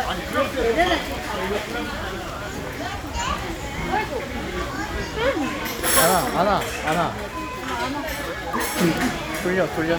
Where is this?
in a restaurant